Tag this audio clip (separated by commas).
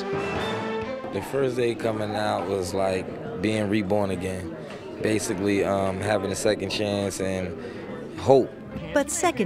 Speech, Music